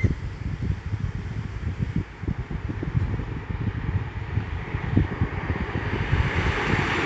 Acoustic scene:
street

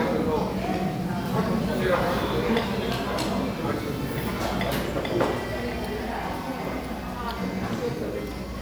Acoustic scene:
crowded indoor space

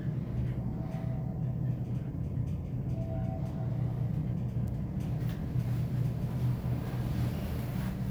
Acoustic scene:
elevator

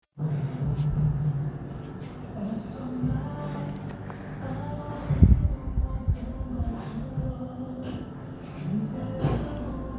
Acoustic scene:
cafe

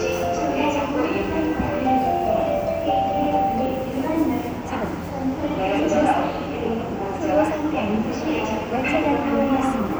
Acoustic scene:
subway station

